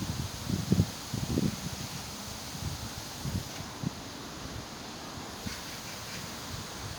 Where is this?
in a park